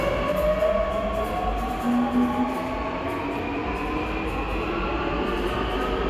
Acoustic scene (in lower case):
subway station